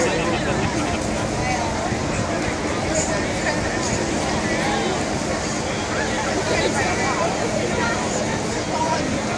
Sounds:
Speech

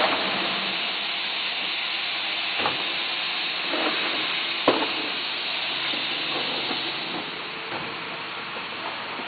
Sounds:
Water

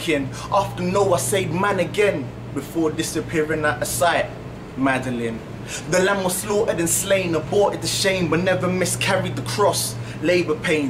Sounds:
Speech

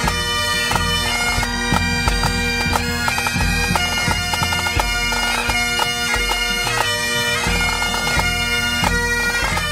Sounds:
playing bagpipes

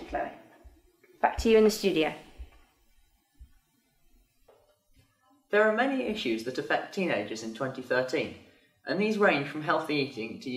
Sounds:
Speech

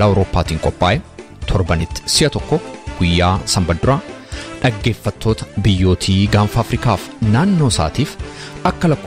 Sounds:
Music, Speech

